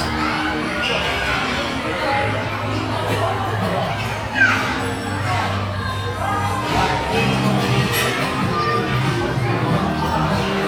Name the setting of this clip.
restaurant